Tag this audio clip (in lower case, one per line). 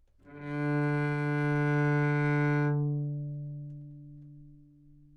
musical instrument
bowed string instrument
music